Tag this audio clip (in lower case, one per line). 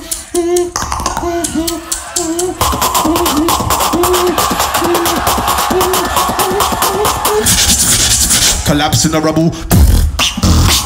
beat boxing